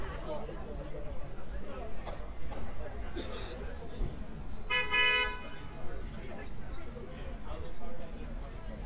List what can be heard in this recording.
car horn, person or small group talking, large crowd